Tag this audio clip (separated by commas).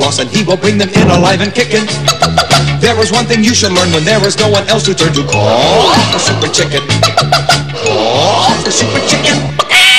Fowl, Cluck, Chicken